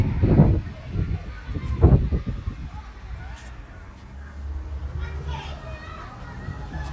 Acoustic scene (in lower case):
residential area